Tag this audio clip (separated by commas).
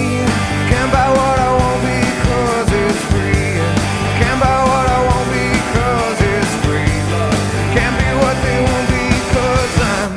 Music, Rock music, Grunge